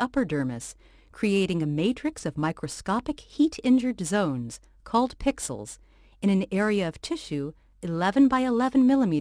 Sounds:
Speech

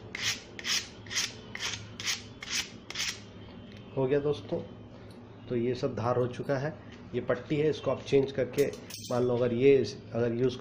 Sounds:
sharpen knife

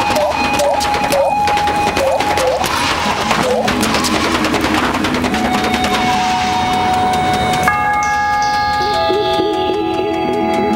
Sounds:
outside, urban or man-made, Music

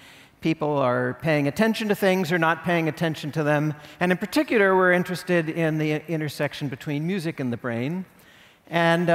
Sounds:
Speech

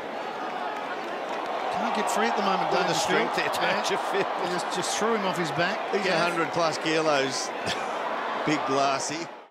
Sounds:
Speech

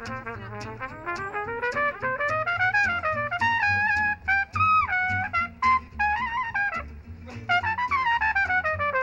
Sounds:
Music

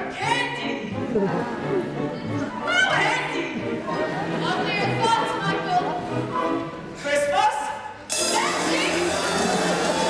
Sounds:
Music, Speech, Chatter

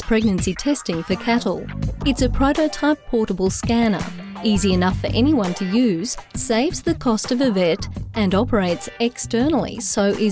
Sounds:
Speech, Music

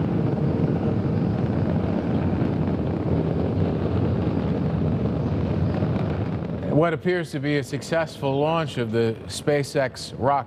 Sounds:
Wind noise (microphone), Speech

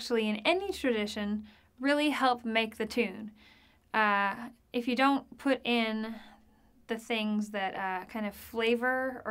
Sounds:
Speech

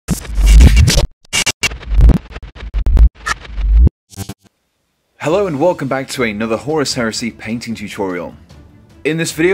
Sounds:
Speech, Music

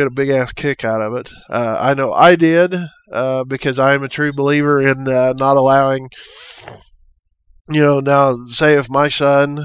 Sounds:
Speech

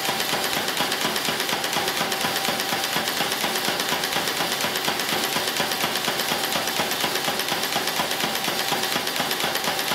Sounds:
inside a large room or hall

